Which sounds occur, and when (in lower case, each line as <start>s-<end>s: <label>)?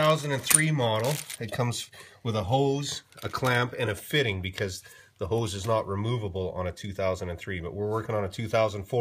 0.0s-1.1s: male speech
0.0s-9.0s: background noise
0.4s-0.6s: generic impact sounds
1.0s-1.4s: crinkling
1.4s-1.9s: male speech
1.9s-2.2s: breathing
2.2s-3.0s: male speech
2.8s-3.4s: generic impact sounds
3.2s-4.8s: male speech
4.8s-5.1s: breathing
5.1s-5.2s: generic impact sounds
5.2s-9.0s: male speech
5.5s-5.6s: generic impact sounds